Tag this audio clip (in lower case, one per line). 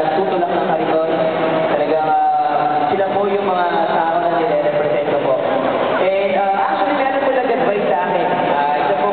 male speech
monologue
speech